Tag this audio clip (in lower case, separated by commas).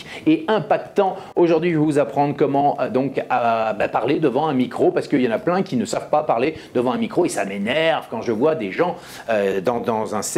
speech